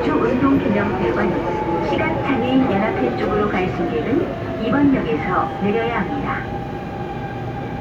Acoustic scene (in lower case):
subway train